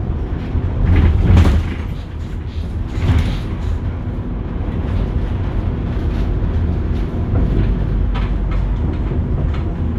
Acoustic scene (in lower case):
bus